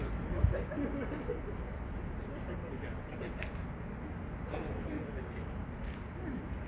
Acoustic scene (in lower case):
street